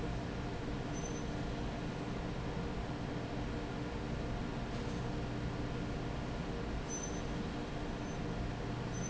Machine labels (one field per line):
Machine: fan